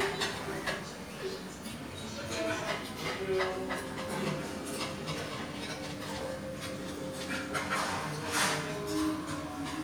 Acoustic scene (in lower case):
restaurant